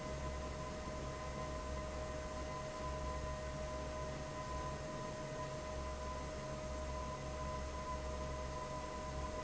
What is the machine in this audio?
fan